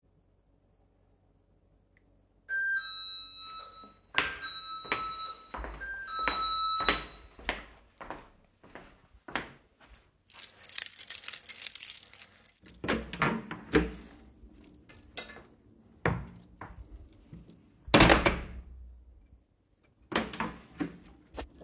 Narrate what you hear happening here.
Bell ringing. Walking to door. Keychain. Open and close the door.